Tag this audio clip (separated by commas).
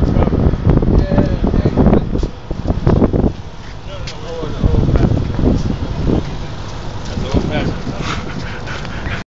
Speech